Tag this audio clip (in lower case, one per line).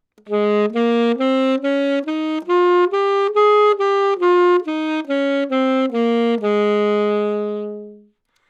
music
musical instrument
woodwind instrument